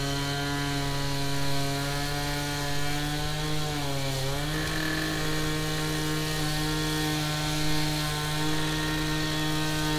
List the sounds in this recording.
unidentified impact machinery